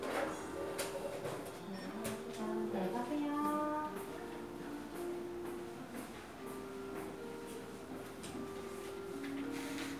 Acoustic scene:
crowded indoor space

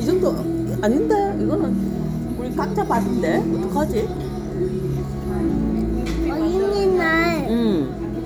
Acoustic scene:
restaurant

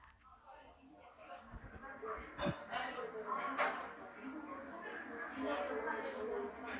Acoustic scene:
cafe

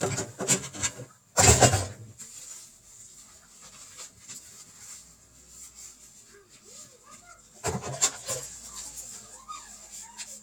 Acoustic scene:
kitchen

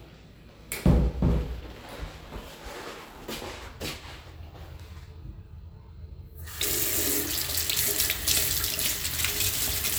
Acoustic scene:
restroom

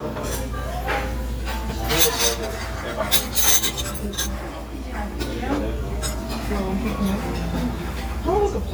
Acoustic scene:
restaurant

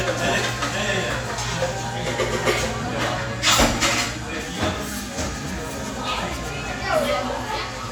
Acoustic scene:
cafe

